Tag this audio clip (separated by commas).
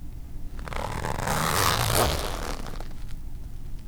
Zipper (clothing), home sounds